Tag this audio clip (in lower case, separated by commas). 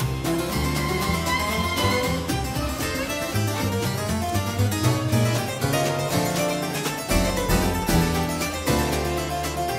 playing harpsichord